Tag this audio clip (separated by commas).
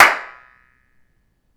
Hands, Clapping